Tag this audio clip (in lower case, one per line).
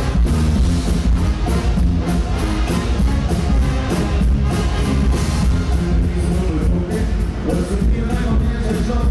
music